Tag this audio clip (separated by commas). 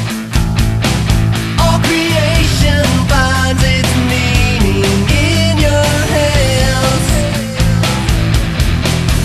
Music, Electronica